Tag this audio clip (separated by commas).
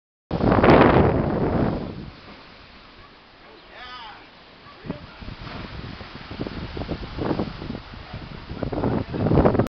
Speech, Water